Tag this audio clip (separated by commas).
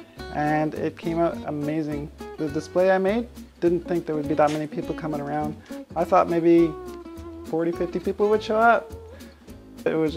Speech, Music